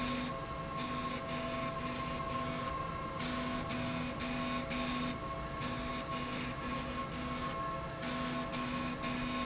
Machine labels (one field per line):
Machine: slide rail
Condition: abnormal